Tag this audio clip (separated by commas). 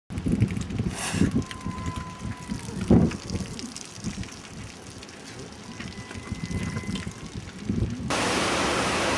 livestock